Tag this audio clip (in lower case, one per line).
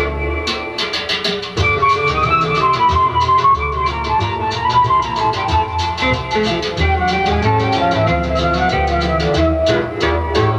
music
background music